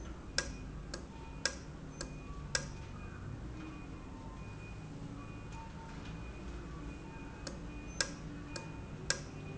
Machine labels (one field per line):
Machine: valve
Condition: normal